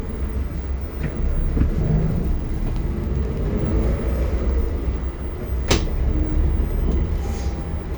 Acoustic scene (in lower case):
bus